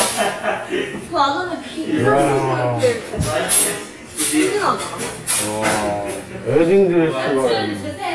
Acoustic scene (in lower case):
crowded indoor space